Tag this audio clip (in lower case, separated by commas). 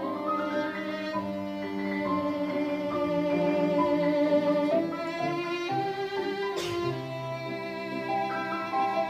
bowed string instrument, cello